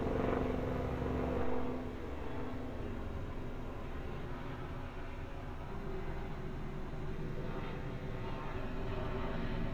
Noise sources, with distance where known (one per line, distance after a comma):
large-sounding engine